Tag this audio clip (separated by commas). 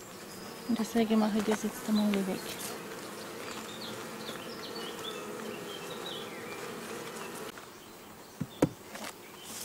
Insect, housefly, bee or wasp